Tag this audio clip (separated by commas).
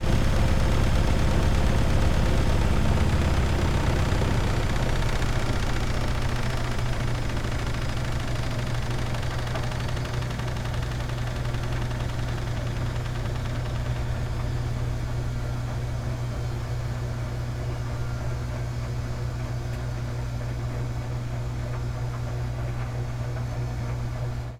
Engine